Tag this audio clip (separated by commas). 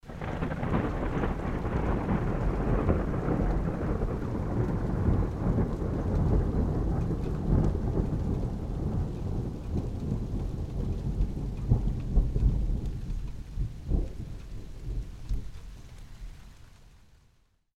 Thunderstorm, Thunder